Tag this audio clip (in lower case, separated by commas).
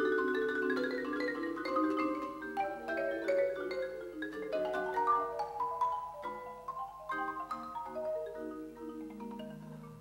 percussion, xylophone, vibraphone, musical instrument, music